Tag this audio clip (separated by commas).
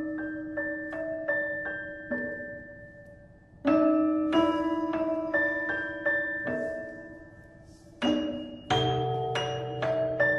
Music, Musical instrument